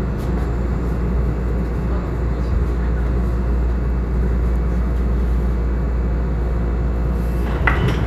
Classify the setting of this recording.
subway train